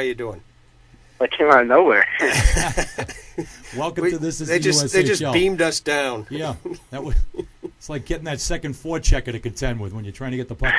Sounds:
speech

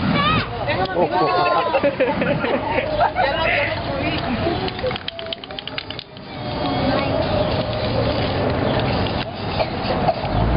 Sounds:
speech

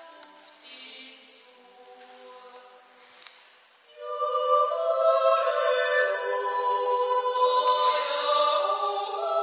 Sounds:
chant

